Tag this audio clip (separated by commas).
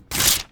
Tearing